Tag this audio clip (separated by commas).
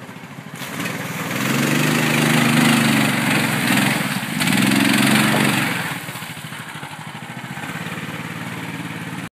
Car, Vehicle